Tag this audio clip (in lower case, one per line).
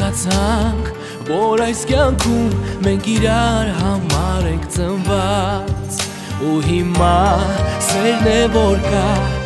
music